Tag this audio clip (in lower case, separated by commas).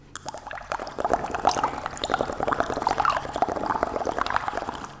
liquid, water